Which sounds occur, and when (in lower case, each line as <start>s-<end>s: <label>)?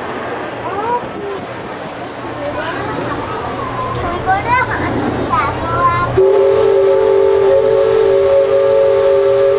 0.0s-9.5s: train
0.6s-1.5s: child speech
2.3s-3.1s: child speech
3.2s-4.9s: child speech
5.3s-6.1s: child speech
6.1s-9.5s: train whistle